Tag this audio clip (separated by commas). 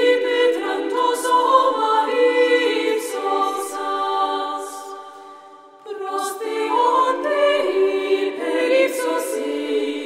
Mantra